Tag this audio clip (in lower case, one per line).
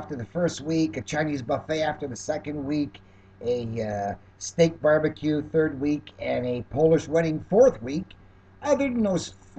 speech